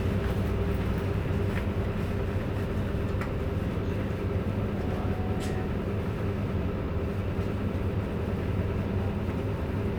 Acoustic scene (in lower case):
bus